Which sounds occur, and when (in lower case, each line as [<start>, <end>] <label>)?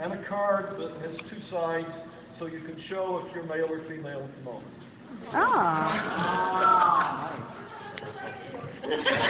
[0.00, 9.25] wind
[0.01, 9.25] hubbub
[0.01, 2.11] male speech
[2.40, 4.61] male speech
[5.10, 7.48] human voice
[8.72, 9.25] laughter